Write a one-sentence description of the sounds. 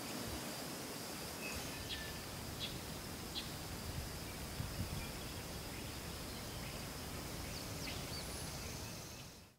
Birds chirping in the background as leaves gently rustle